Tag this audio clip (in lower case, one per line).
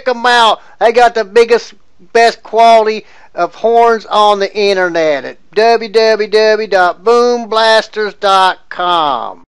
speech